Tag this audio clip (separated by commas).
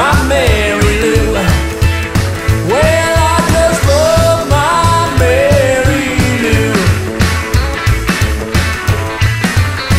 Music